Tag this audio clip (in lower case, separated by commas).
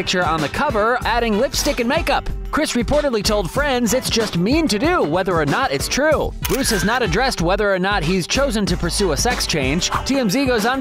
speech, music